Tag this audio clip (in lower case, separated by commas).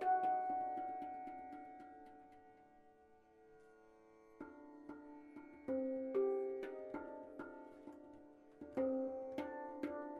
musical instrument, music